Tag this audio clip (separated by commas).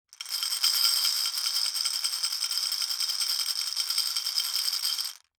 Glass